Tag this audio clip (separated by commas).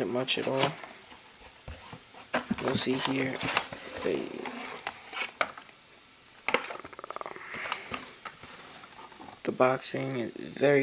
Speech